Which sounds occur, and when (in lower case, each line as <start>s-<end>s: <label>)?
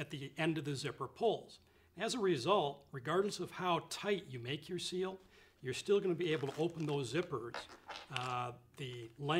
0.0s-1.4s: male speech
0.0s-9.3s: background noise
1.6s-1.7s: generic impact sounds
1.6s-1.9s: breathing
2.0s-2.7s: male speech
2.8s-2.9s: generic impact sounds
2.9s-5.2s: male speech
5.1s-5.6s: breathing
5.7s-7.6s: male speech
6.2s-7.0s: generic impact sounds
7.4s-8.5s: generic impact sounds
7.8s-8.5s: male speech
8.7s-9.1s: generic impact sounds
8.7s-9.3s: male speech